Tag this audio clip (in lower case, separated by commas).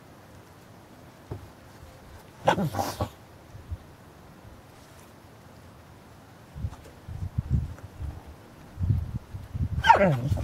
animal, dog, domestic animals